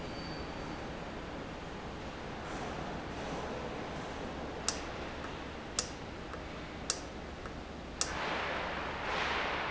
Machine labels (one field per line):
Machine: valve